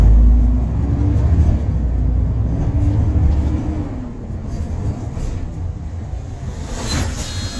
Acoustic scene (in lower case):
bus